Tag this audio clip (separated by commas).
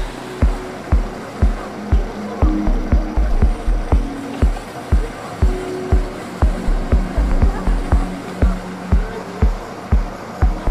Rain on surface, Music, Speech